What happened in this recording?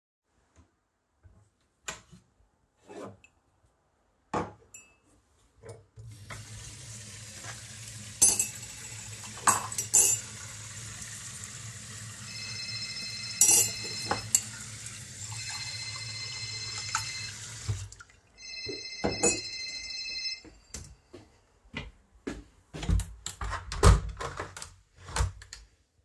I am getting a cup and turning the wwater on. Then the phone starts ringing, but I ignore it, fill my cup with water, walk away and open the window.